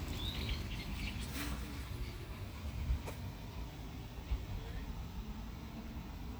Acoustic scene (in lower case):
park